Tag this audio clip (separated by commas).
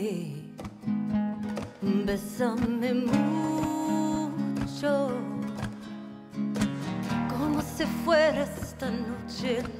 Flamenco, Singing